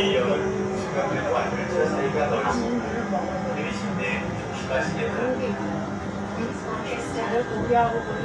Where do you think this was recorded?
on a subway train